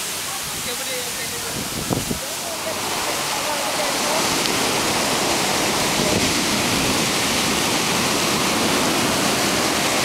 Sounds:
ocean, wind noise (microphone), waves, wind

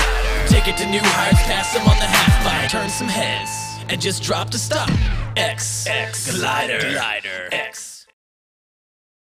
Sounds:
music

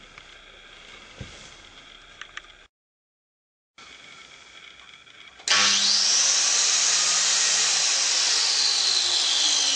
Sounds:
tools, power tool

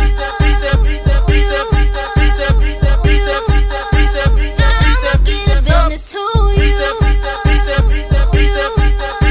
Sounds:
music

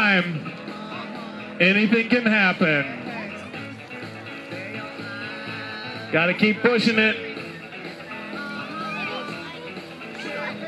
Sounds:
music, speech

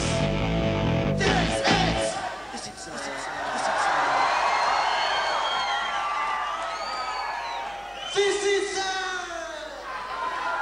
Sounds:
speech, music, rock and roll

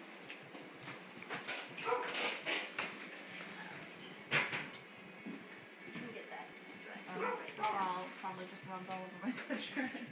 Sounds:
yip, speech

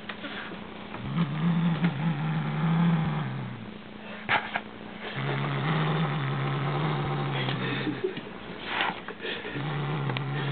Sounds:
cat growling

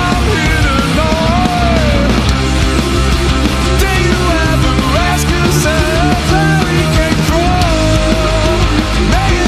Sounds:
music, rhythm and blues

